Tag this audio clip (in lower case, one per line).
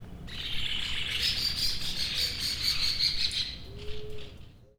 animal
wild animals
bird